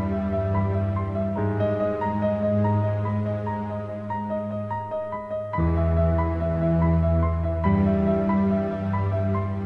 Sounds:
Musical instrument, Music

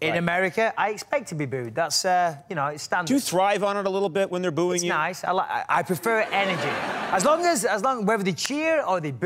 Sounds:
people booing

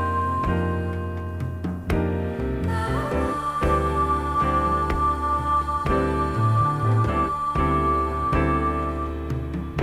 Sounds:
Music

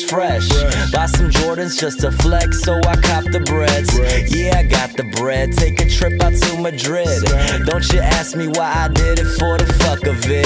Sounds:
Music

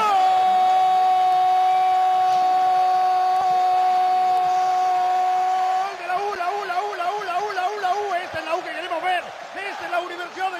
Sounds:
Speech

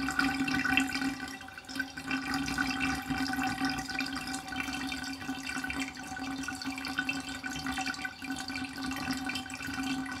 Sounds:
Water

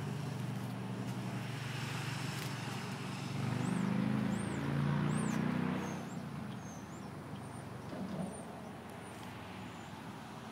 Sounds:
Vehicle

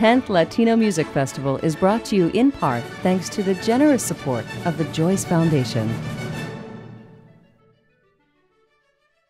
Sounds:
Speech, Music

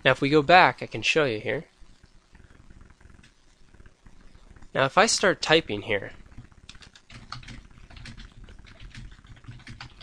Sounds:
Speech, inside a small room

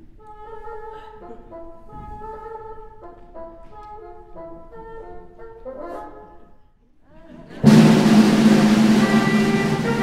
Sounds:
playing bassoon

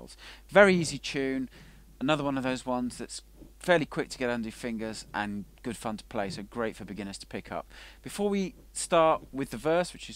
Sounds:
Speech

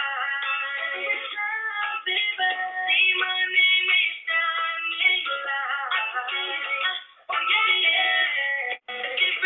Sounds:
Music, Female singing

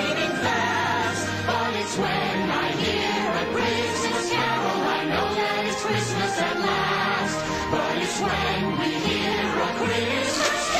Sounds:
Music, Christmas music

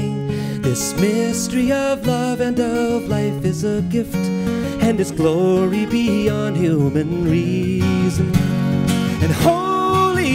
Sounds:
Music

